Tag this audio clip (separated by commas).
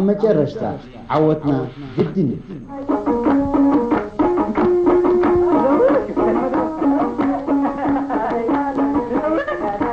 Middle Eastern music